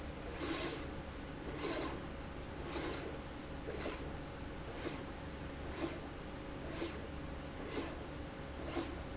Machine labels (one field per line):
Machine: slide rail